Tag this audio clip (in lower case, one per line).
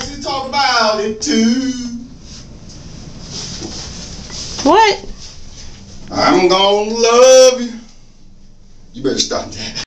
male singing
speech